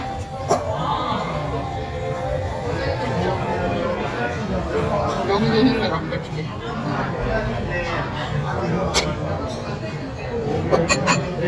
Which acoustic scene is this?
restaurant